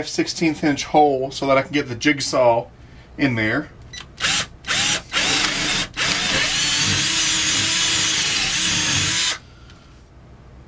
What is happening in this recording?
An adult male speaks and operates a drill